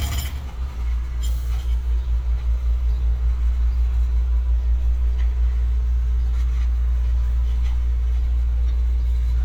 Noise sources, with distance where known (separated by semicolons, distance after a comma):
jackhammer, near; person or small group talking, far